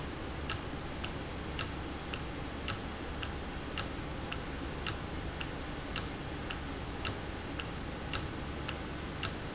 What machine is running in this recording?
valve